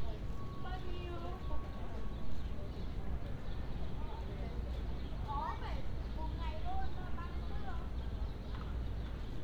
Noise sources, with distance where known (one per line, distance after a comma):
person or small group talking, near